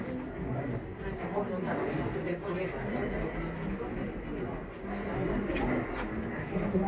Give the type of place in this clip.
crowded indoor space